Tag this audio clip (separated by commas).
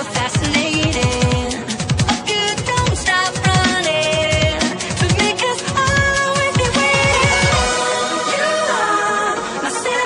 Electronic music, Dubstep, Music